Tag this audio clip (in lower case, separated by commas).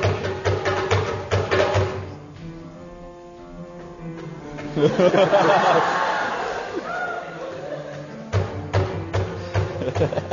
music